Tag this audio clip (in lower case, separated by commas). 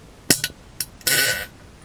fart